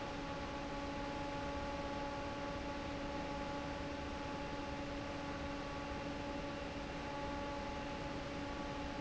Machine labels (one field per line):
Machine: fan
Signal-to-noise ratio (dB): 0 dB